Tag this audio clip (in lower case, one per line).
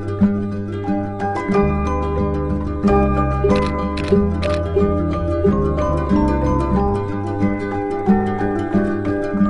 music
single-lens reflex camera